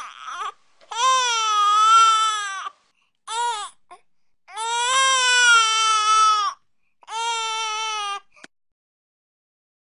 A baby is crying in distress